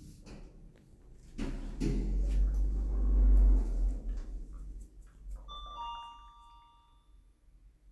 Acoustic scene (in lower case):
elevator